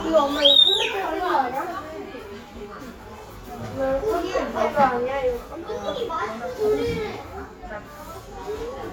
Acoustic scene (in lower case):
crowded indoor space